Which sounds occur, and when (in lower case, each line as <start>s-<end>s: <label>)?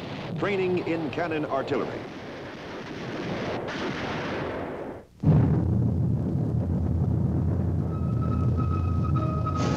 0.0s-5.0s: artillery fire
0.0s-9.7s: background noise
0.3s-1.9s: man speaking
5.2s-8.0s: artillery fire
7.9s-9.7s: music